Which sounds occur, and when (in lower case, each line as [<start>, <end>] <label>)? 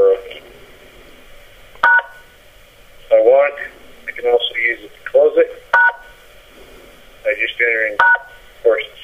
[0.00, 0.40] male speech
[0.00, 9.03] mechanisms
[1.80, 2.28] telephone dialing
[3.00, 3.83] male speech
[4.05, 4.87] male speech
[5.02, 5.47] male speech
[5.70, 6.13] telephone dialing
[7.20, 7.93] male speech
[7.93, 8.39] telephone dialing
[8.64, 9.03] male speech